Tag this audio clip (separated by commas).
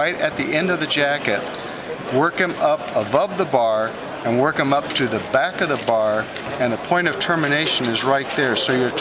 Speech